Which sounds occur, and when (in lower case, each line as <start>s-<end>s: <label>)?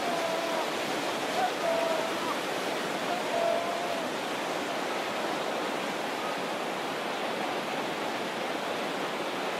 0.0s-0.6s: human sounds
0.0s-9.5s: stream
1.2s-2.4s: human sounds
3.0s-4.1s: human sounds
6.1s-6.5s: human sounds